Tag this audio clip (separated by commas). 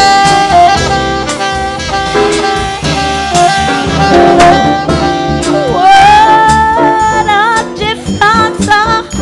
Music, Jazz